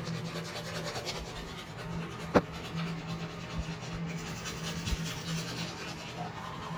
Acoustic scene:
restroom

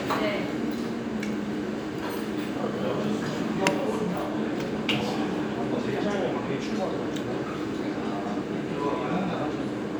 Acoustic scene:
restaurant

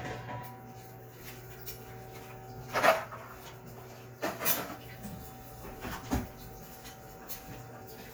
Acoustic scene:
kitchen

